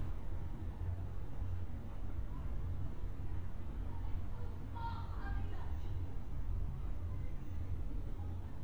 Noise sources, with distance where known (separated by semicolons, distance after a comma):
person or small group shouting